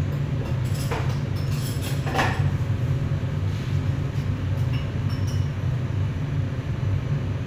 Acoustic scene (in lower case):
restaurant